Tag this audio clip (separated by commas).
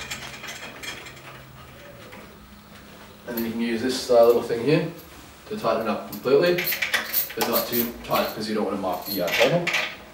Speech